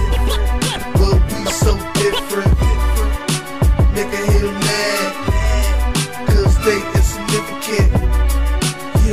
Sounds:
music
background music
theme music

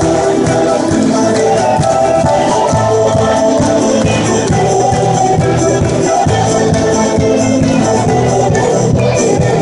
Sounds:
choir
music
music of latin america
singing

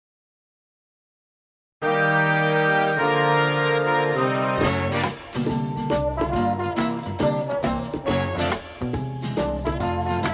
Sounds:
music

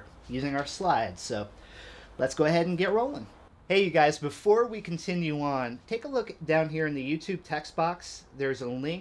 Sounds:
speech

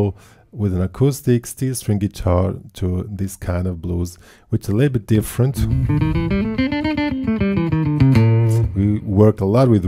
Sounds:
music
plucked string instrument
guitar
speech

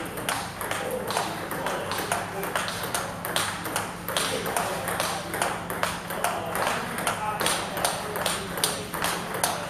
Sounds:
speech

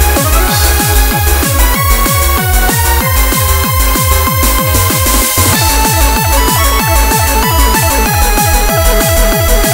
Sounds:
music

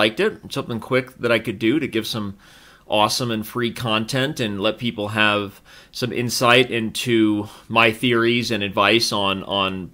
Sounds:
speech

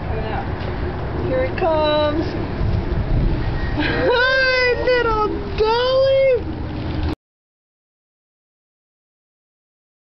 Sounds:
speech

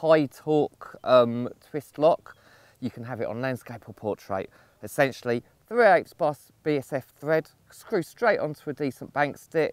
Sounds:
speech

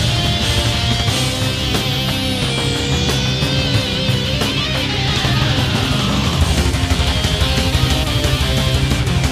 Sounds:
music

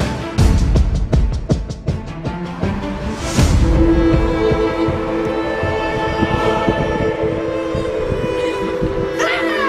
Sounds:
music

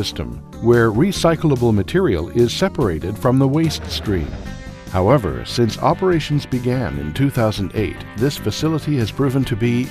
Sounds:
music
speech

